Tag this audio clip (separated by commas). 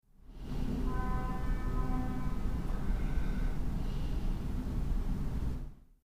Rail transport, Breathing, Respiratory sounds, Train, Vehicle